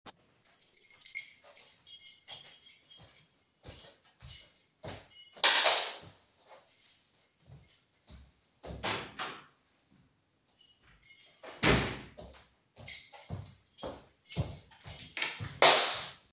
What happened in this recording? I walk through the living room with my keychain in hand and drop the keychain while walking. On the other side of the living room I close the door and then walk back while dropping my keychain.